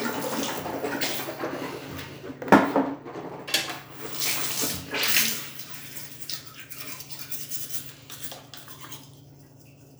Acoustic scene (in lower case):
restroom